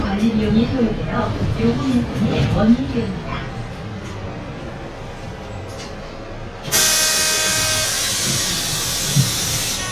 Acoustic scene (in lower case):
bus